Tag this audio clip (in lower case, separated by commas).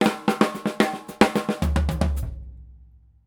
percussion, music, musical instrument, drum kit